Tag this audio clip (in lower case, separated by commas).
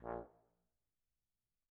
music, brass instrument, musical instrument